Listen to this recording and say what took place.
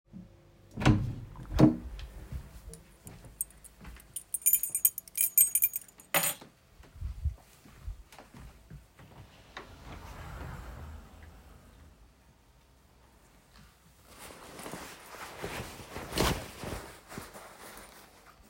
I opened a door, entered bedroom and placed keys on the table. Then I moved to the wardrobe, opened it, and put a jacket inside.